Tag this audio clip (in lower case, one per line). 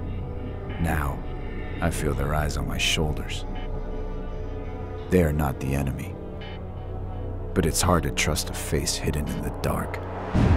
music
speech